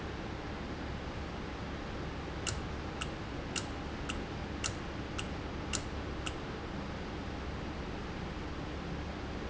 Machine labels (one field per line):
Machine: valve